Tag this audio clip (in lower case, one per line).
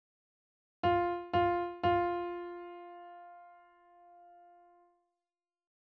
musical instrument
piano
keyboard (musical)
music